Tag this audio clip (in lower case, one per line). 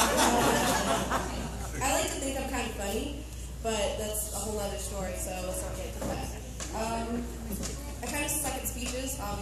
monologue
woman speaking
speech